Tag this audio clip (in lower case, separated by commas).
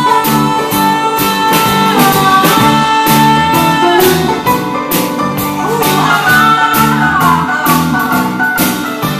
country, singing